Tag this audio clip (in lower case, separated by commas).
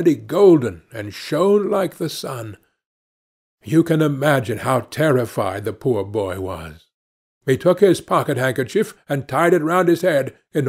speech